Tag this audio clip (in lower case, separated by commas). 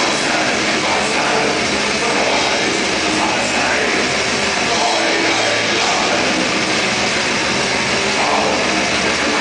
music